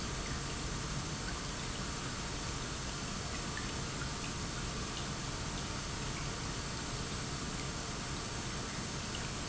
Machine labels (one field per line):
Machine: pump